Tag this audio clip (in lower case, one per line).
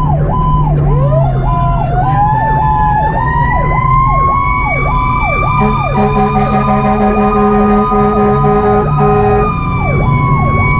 fire truck siren